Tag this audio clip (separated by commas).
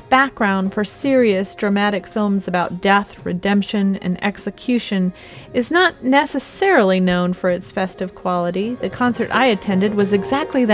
Music, Speech, Background music